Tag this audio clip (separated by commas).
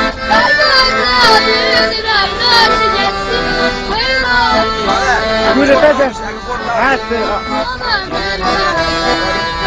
Child singing, Music, Speech